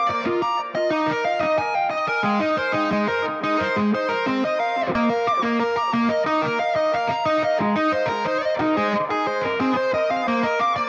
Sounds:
tapping guitar

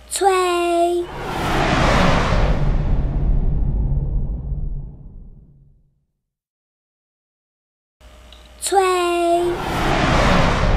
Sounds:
Speech

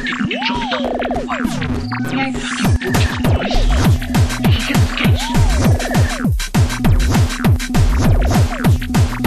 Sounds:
Speech, Music

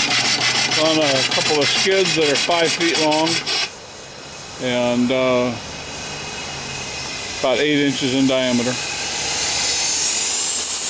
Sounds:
Engine, Speech

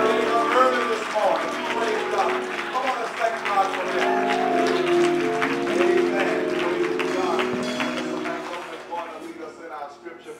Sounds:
Speech, Music, Tender music

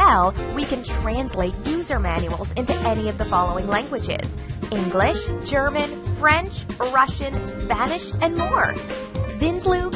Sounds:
Music, Speech

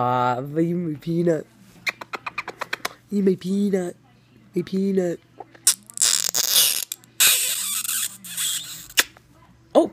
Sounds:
Speech, inside a small room

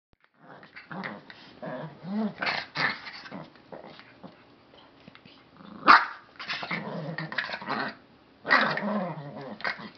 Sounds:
Dog, Animal, Domestic animals

